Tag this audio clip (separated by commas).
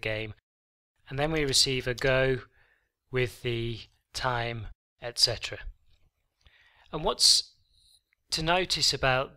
Speech